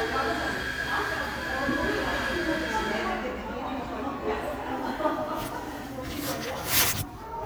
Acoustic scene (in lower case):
crowded indoor space